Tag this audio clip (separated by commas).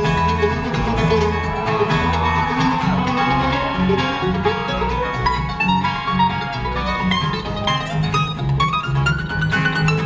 Music, Bluegrass